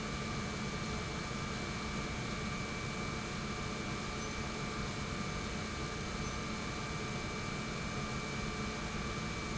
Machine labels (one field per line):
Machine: pump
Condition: normal